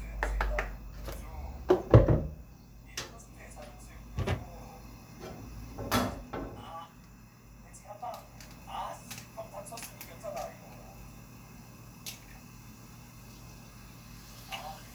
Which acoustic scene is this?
kitchen